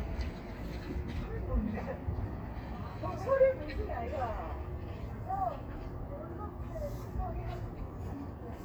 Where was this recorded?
on a street